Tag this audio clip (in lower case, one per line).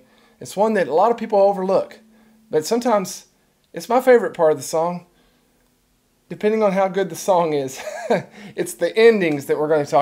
speech